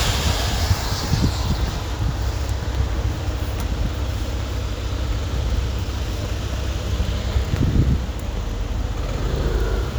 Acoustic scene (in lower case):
street